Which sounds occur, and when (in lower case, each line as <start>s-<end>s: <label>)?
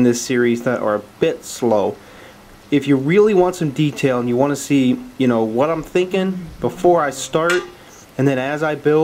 0.0s-1.0s: man speaking
0.0s-9.0s: background noise
1.2s-1.9s: man speaking
1.9s-2.4s: breathing
2.7s-7.7s: man speaking
7.4s-7.7s: generic impact sounds
7.9s-8.1s: breathing
8.2s-9.0s: man speaking